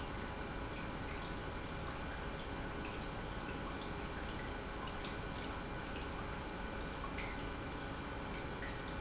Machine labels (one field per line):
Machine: pump